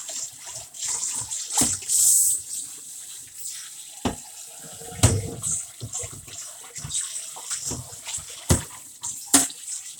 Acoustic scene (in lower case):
kitchen